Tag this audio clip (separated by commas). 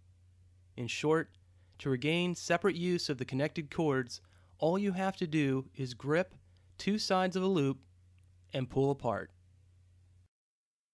Speech